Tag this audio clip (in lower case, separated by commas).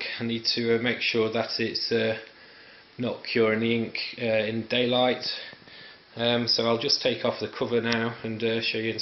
speech